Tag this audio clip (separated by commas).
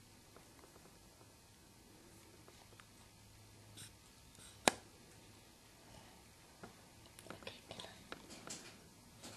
Speech